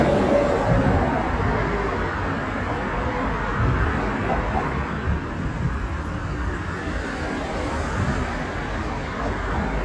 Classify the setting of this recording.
street